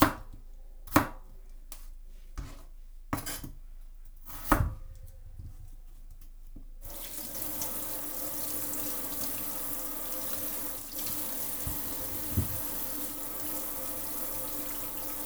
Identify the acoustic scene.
kitchen